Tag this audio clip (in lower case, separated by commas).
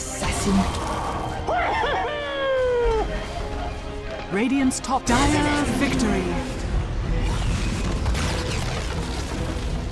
music, speech